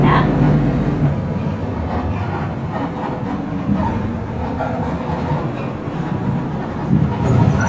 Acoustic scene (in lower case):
bus